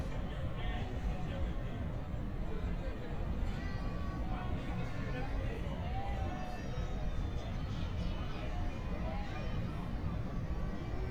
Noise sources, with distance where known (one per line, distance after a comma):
person or small group talking, far